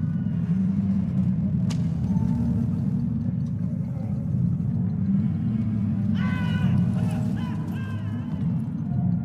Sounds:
Music

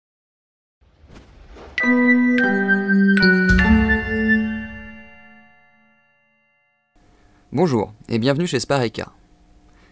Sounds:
Speech, Music

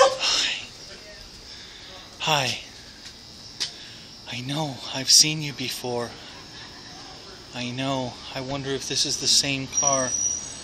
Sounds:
Speech

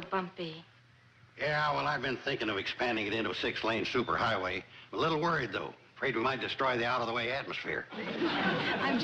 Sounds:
Television, Speech

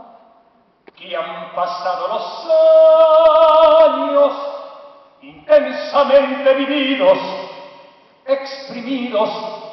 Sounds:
Music, Vocal music

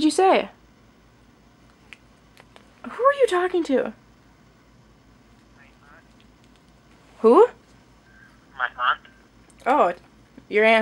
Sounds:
woman speaking, Conversation, Speech

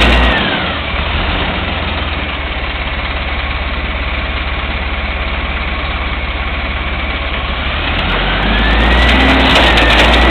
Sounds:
Vehicle

